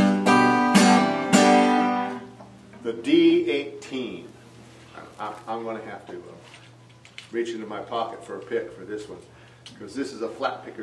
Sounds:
Music, Speech

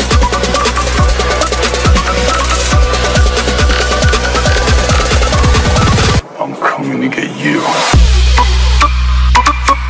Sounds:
Music, Electronic music, Dubstep

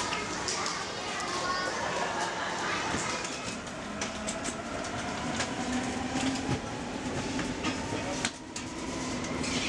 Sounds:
Train, Speech, underground, Vehicle

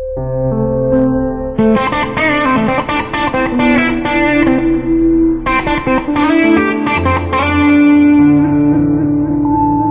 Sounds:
Plucked string instrument, Strum, Music, Guitar, Musical instrument

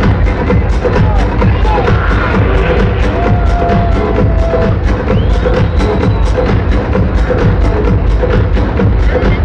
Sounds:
Music, Sound effect, Speech, Crowd

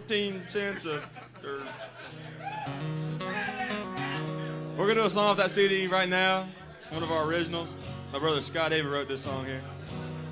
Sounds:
Speech, Music

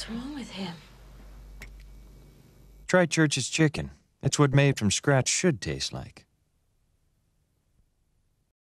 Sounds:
Speech

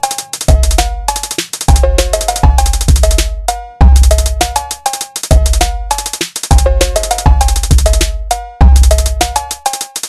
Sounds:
Techno, Music

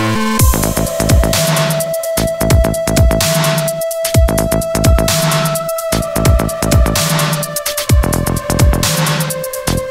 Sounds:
Music

